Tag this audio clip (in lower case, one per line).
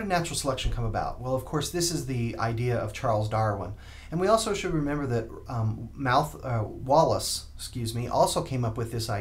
speech